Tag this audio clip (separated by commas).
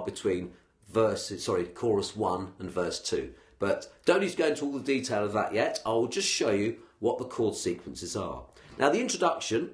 Speech